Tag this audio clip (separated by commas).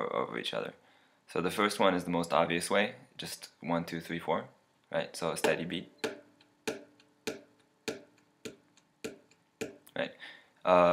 Speech